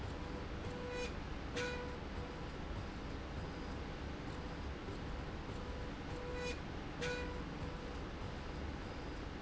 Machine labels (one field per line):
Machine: slide rail